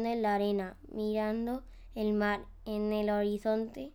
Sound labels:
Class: speech